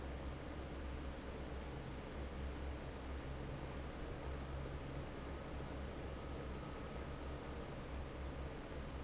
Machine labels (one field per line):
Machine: fan